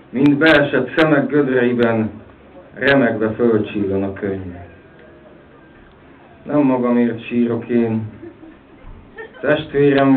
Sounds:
Speech

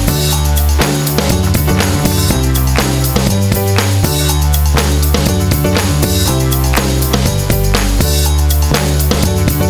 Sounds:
outside, urban or man-made, Music

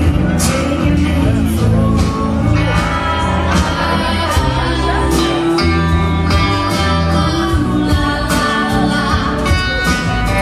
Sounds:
Music, Speech

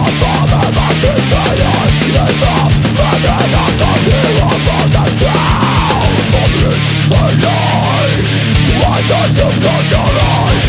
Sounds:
Music

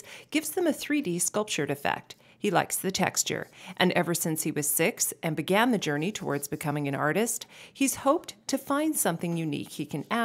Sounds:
Speech

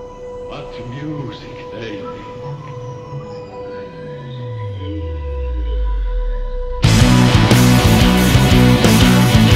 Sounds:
Rock music, Speech, Music, Heavy metal

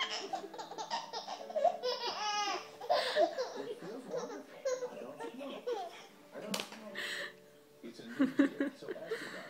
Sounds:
Music, Speech

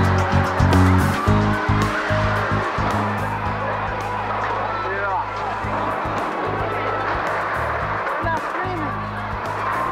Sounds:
Music, Speech

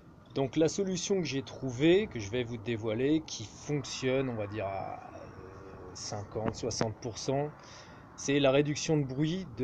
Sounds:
Speech

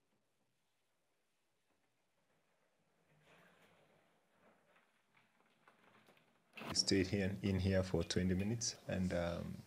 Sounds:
inside a small room, Speech

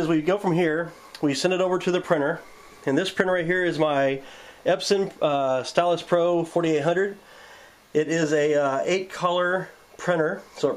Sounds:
Speech

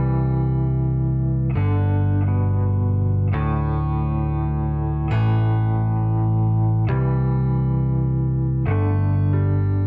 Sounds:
Music

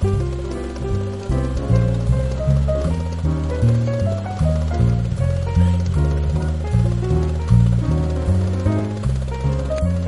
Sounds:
Music

